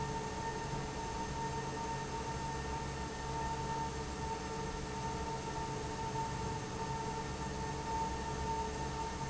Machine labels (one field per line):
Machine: fan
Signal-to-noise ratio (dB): -6 dB